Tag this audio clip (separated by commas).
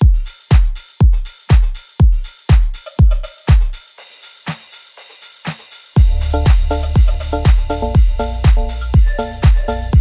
Music